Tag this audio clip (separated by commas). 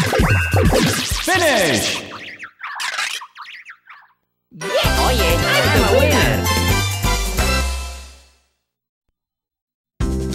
Music, Speech